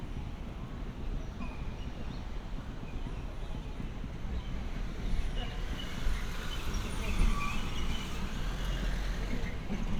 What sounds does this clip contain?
engine of unclear size, unidentified human voice